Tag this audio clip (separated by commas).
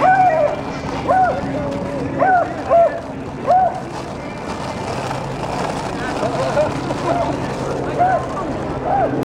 Speech